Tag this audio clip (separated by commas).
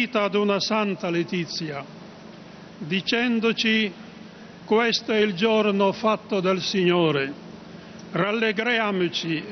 Male speech, Speech